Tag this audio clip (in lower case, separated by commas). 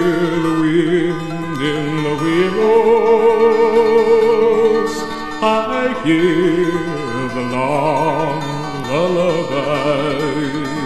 music